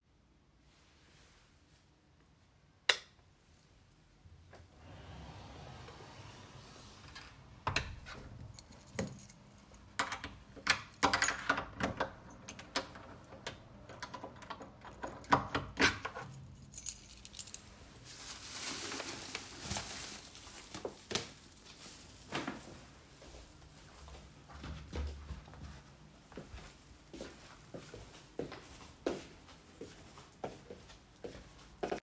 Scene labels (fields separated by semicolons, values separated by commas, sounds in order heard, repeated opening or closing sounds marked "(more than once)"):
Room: bedroom, hallway; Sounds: light switch, door (more than once), keys, footsteps